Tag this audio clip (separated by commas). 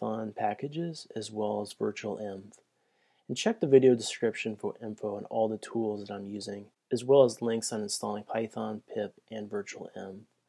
Speech